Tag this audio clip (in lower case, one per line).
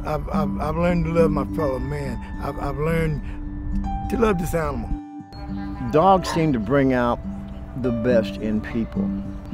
music
speech
dog
bow-wow
pets